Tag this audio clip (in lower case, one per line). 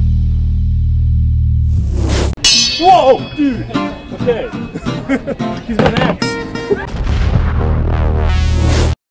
speech
music